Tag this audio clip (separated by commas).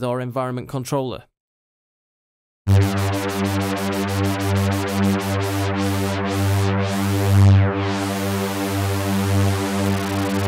Synthesizer